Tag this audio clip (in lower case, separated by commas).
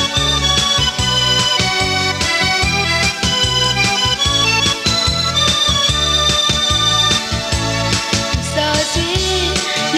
music